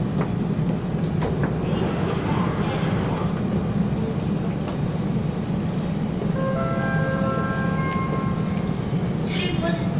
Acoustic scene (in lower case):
subway train